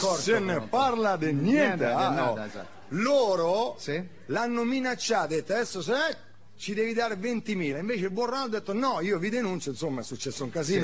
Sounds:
Speech

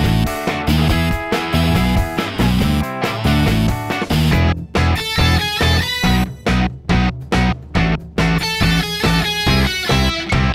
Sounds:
Music

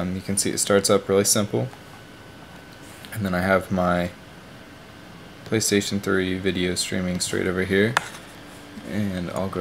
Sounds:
Speech

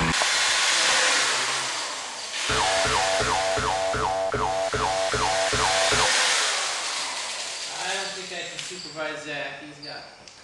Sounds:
Speech

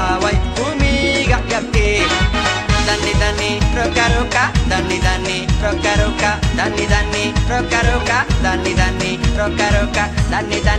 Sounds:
Music, Dance music

